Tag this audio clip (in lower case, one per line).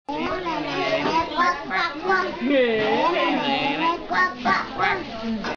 quack
speech